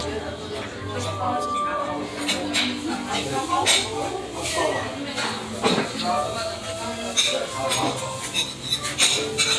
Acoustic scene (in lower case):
restaurant